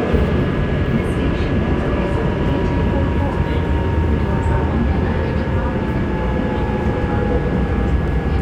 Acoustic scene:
subway train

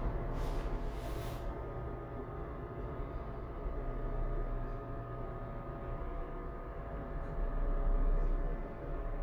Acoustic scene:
elevator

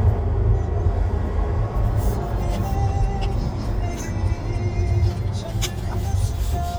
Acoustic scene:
car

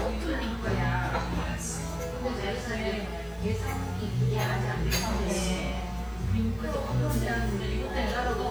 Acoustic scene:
restaurant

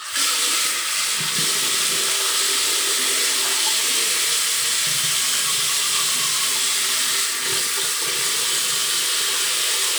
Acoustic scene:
restroom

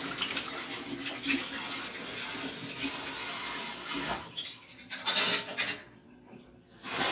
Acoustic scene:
kitchen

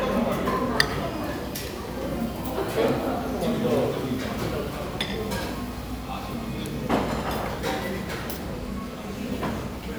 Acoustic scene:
crowded indoor space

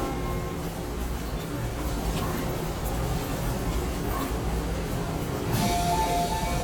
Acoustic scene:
subway station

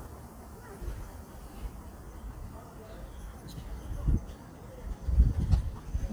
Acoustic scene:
park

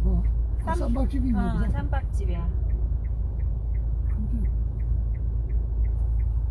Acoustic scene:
car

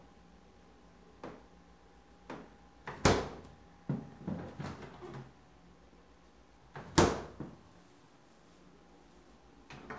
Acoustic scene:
kitchen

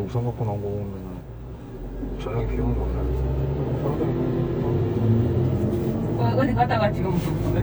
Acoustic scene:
car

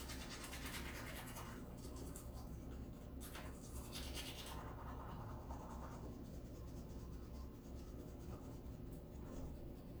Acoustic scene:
restroom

